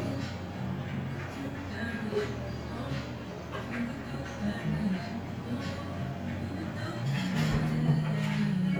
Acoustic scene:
cafe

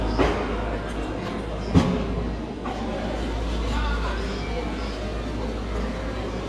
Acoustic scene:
cafe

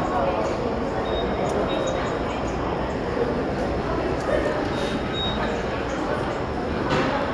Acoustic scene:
subway station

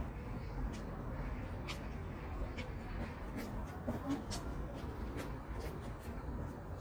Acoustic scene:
park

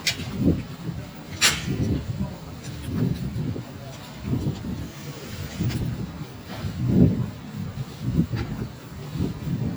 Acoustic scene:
residential area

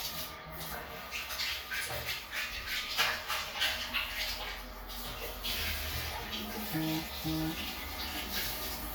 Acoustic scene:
restroom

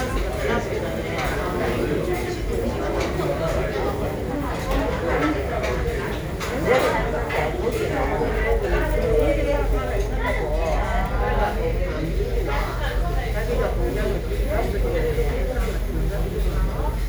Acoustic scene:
crowded indoor space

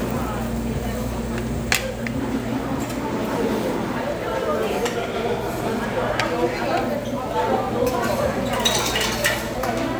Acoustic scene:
restaurant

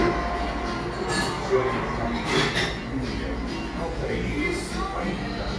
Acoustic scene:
cafe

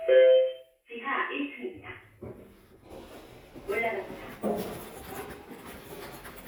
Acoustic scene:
elevator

